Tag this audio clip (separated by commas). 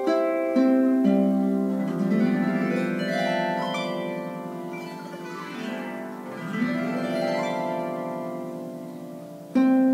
Music